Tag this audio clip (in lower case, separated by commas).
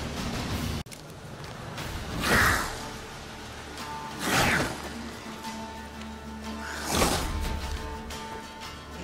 video game music, music